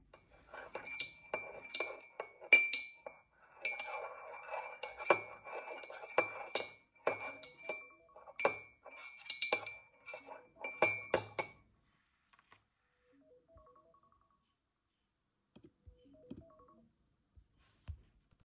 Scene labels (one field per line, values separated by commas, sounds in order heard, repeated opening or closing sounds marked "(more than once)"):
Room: kitchen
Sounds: cutlery and dishes, phone ringing